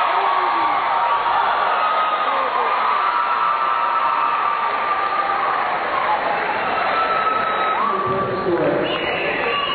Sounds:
speech

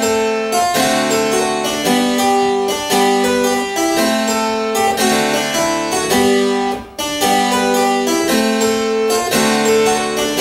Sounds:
playing harpsichord

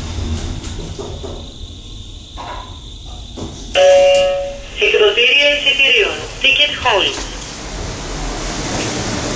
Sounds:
speech

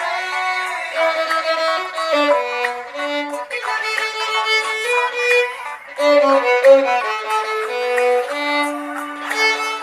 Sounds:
music
violin
musical instrument

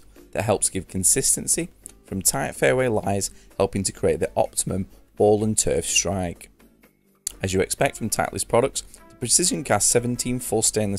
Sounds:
speech
music

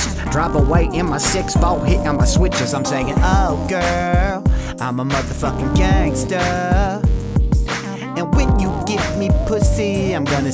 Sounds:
rapping

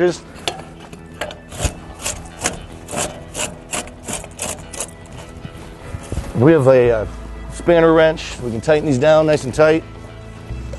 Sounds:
speech
music

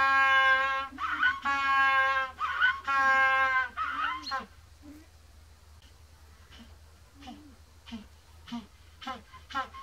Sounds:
penguins braying

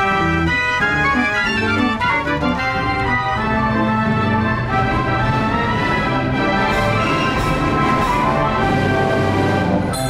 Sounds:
music

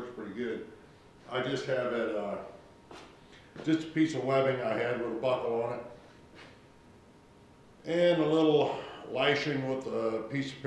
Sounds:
speech

